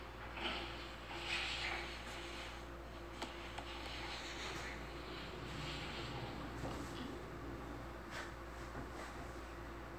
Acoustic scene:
elevator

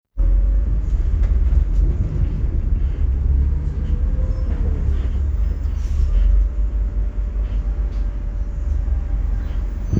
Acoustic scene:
bus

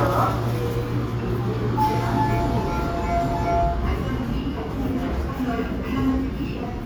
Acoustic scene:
subway station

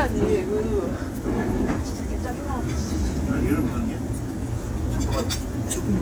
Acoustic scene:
crowded indoor space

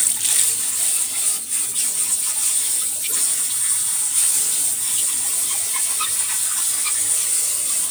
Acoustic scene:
kitchen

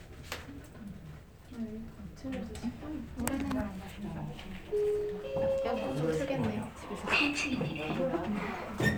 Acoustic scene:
elevator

